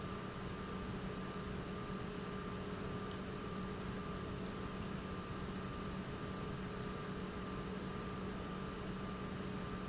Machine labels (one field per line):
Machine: pump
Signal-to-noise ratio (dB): 0 dB